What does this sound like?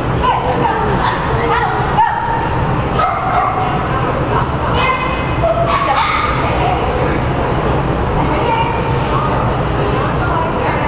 Several children yell and talk as multiple dogs bark and shuffle around